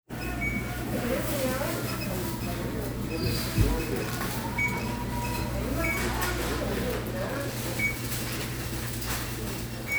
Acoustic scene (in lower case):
crowded indoor space